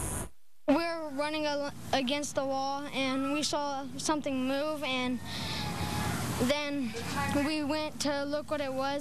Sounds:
speech

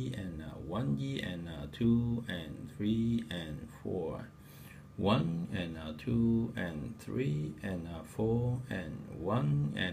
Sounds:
speech

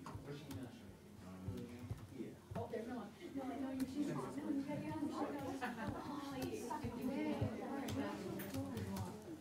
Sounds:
woman speaking, speech

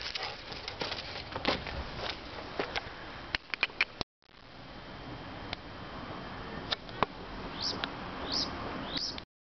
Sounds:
domestic animals, animal, dog

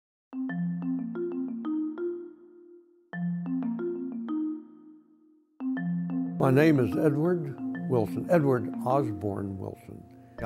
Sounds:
speech, music, vibraphone

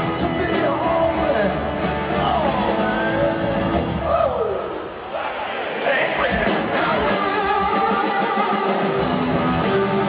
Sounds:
rock and roll, roll, music

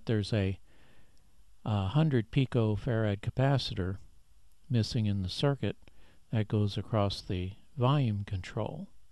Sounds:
speech

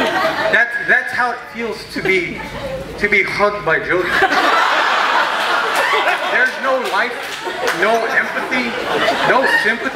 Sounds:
speech, laughter

